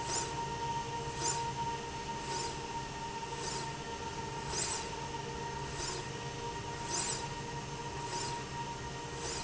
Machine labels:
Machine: slide rail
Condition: normal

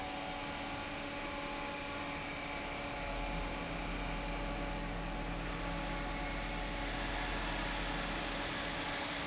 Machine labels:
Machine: fan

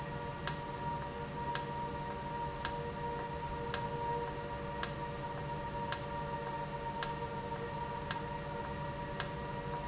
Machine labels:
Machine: valve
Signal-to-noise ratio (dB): -6 dB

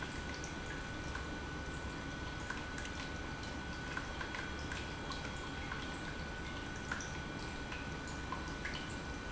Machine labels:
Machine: pump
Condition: normal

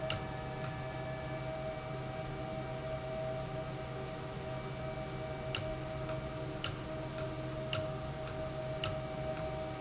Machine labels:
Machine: valve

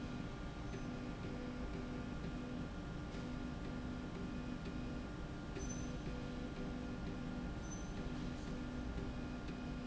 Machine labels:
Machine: slide rail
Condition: normal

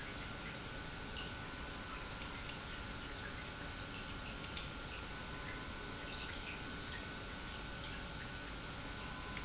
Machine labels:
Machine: pump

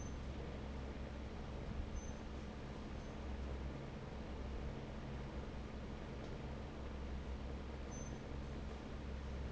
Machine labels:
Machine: fan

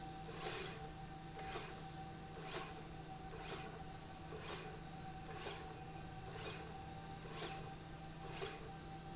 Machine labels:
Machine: slide rail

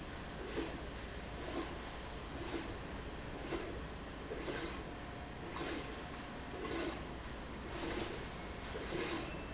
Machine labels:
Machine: slide rail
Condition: abnormal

